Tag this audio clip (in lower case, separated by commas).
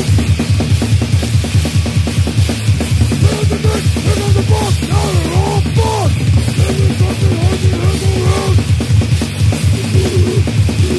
rattle, music